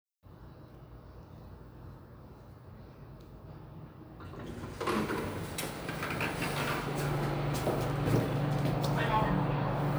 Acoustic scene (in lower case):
elevator